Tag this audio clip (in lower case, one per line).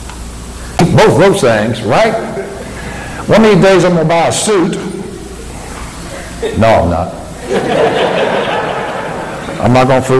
speech